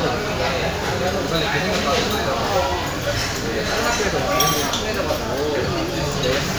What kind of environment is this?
crowded indoor space